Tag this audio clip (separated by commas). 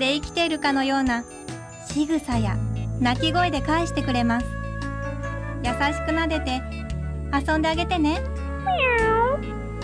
Music, Cat, Meow, Animal, Speech